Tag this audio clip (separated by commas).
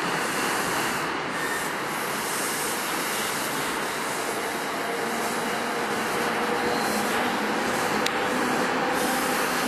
Train, train wagon, Rail transport, Vehicle